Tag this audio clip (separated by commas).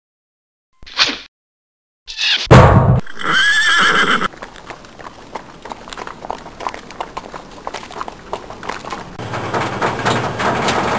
Clip-clop, Horse